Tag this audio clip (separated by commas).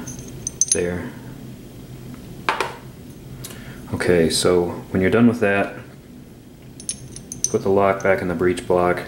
Hammer